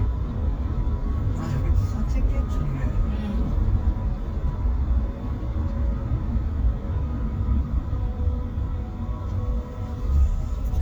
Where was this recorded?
in a car